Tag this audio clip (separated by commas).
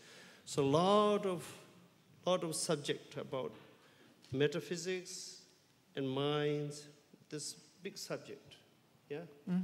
Speech